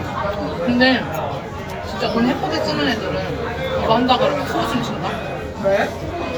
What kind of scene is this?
restaurant